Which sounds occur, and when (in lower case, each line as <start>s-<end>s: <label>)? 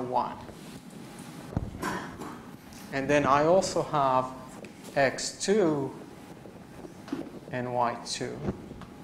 0.0s-0.5s: man speaking
0.0s-9.0s: mechanisms
0.5s-0.7s: generic impact sounds
1.5s-1.6s: generic impact sounds
1.8s-2.0s: generic impact sounds
2.1s-2.3s: generic impact sounds
2.7s-2.7s: generic impact sounds
2.8s-4.4s: man speaking
3.2s-3.3s: generic impact sounds
4.5s-4.6s: generic impact sounds
4.8s-5.9s: man speaking
6.2s-6.8s: generic impact sounds
7.0s-7.2s: generic impact sounds
7.4s-8.5s: man speaking
8.4s-8.5s: generic impact sounds
8.7s-8.8s: generic impact sounds